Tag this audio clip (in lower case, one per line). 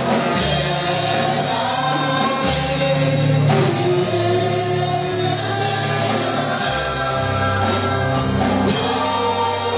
gospel music
music